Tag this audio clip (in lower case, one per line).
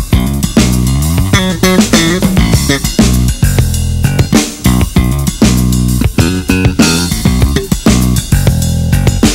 musical instrument
plucked string instrument
bass guitar
guitar
music